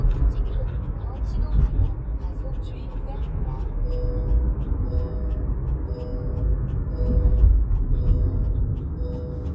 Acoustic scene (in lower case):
car